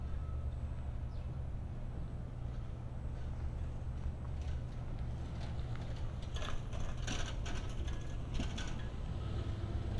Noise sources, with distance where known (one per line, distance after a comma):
engine of unclear size